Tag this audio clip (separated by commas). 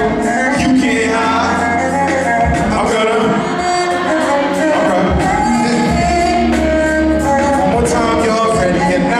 Musical instrument, fiddle, Music